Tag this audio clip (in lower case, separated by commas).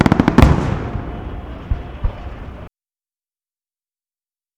fireworks, explosion